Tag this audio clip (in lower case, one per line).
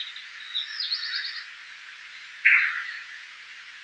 wild animals
bird
animal